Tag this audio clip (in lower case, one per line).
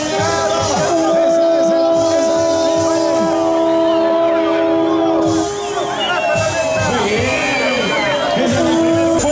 speech
inside a public space